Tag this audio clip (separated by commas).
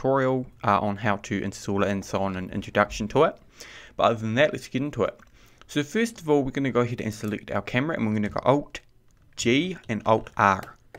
Speech